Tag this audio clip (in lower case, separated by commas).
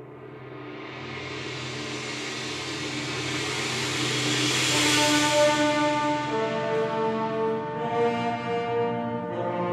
music